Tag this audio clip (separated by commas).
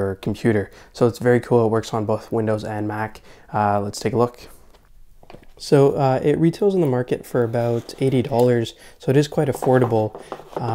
Speech